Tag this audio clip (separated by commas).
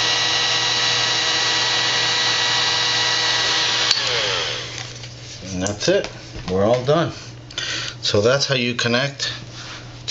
inside a small room, Speech